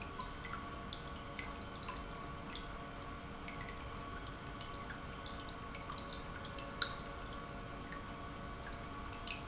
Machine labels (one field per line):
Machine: pump